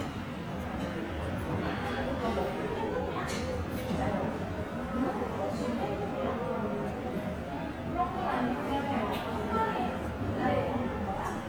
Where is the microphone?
in a restaurant